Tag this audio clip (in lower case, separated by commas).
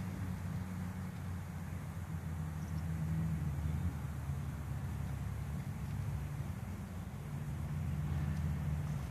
speech